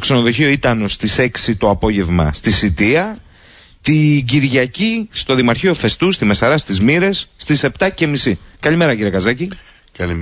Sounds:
Speech

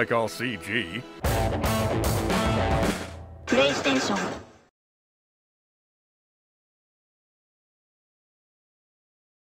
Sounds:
Speech, Music

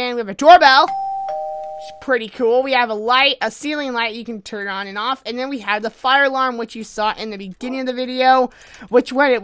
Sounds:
Ding-dong, Speech

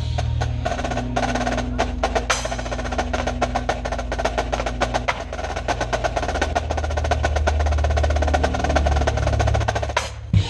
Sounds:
playing snare drum

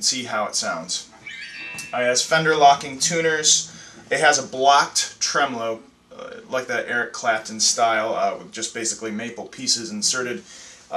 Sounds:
Speech

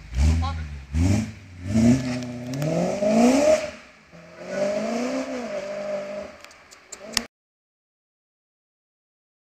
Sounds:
Speech

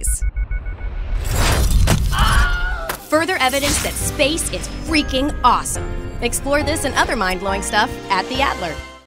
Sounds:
Music, Speech

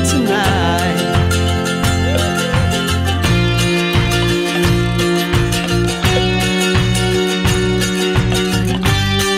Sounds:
playing mandolin

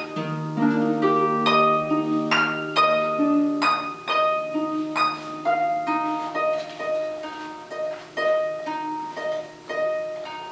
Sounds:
Music, Harp, playing harp

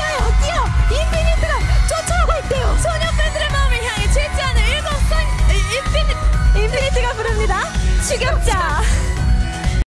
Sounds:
Exciting music, Speech, Music

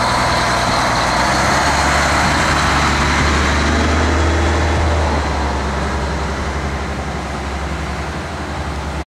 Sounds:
Truck, Vehicle

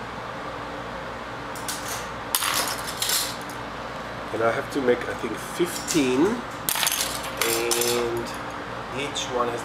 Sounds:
Speech, inside a large room or hall

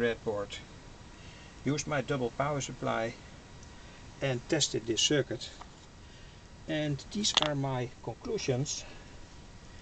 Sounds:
Speech

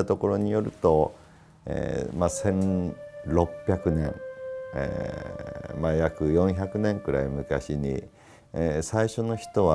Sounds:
Speech, Music

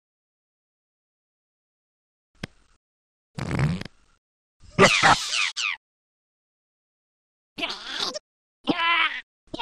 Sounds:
Fart

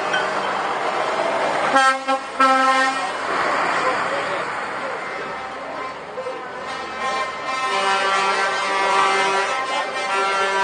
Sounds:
Vehicle

